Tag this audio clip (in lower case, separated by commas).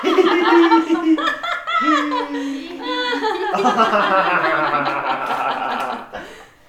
human voice, laughter